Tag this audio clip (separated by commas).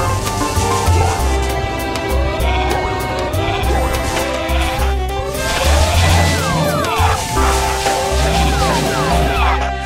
Music